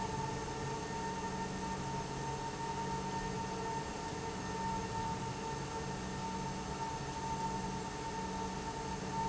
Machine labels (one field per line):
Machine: pump